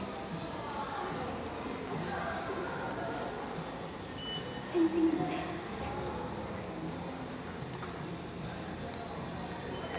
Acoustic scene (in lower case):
subway station